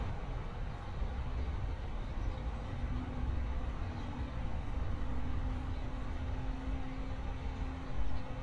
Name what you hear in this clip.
large-sounding engine